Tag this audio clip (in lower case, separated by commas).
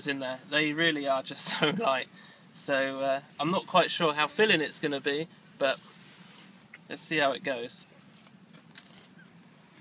speech